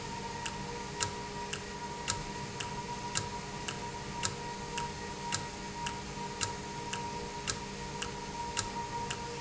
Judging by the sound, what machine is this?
valve